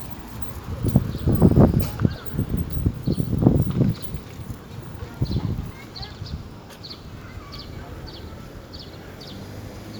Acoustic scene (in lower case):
residential area